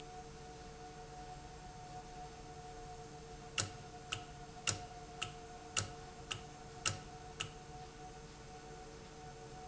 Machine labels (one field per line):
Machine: valve